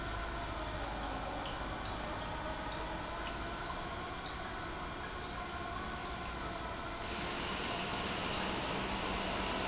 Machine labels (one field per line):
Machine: pump